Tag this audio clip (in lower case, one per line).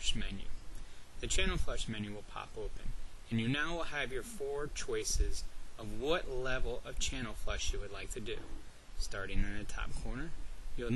speech